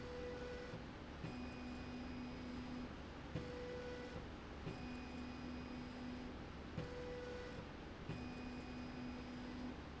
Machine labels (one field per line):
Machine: slide rail